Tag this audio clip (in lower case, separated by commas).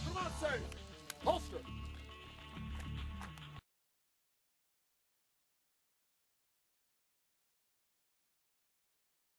speech, music